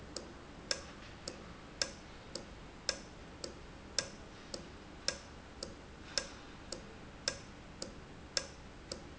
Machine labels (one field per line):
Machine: valve